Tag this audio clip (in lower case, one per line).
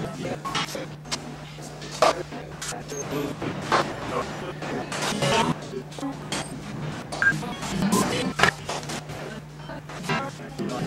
music